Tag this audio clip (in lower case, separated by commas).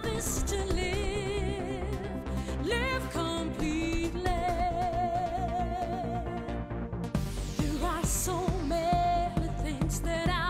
music